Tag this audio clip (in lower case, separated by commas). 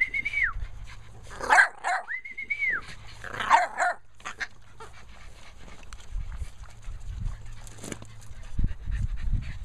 dog, pets, animal